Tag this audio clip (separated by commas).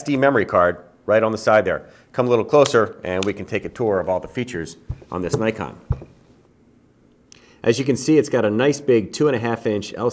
Speech